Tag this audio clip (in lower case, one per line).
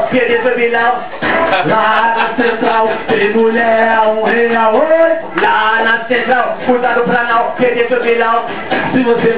speech